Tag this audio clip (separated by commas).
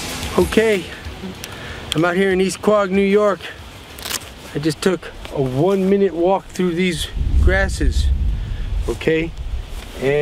Speech